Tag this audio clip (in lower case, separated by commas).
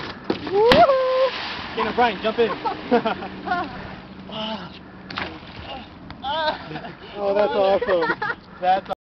boat, speech, vehicle